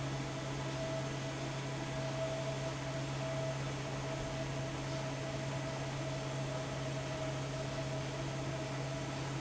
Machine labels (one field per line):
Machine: fan